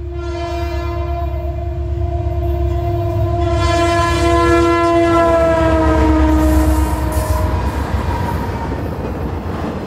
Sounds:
train horning

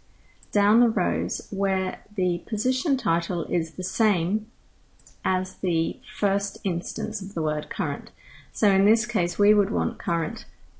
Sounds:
Speech

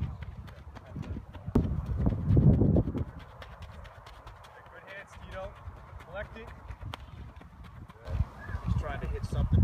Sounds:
Speech

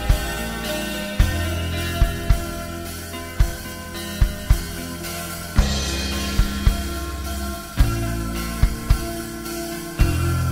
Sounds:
Music

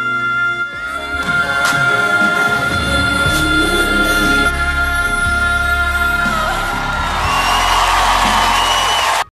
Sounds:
Music, Female singing

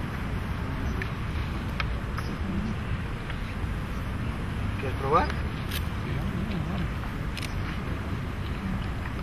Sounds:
Speech

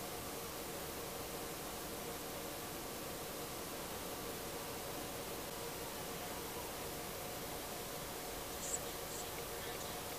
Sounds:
Speech

